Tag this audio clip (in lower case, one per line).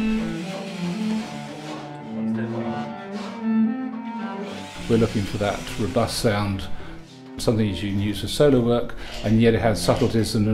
cello
bowed string instrument